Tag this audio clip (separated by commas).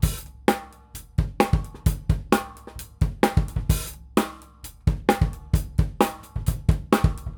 Music, Musical instrument, Percussion, Drum kit